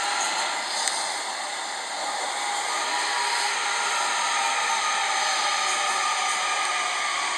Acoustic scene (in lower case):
subway train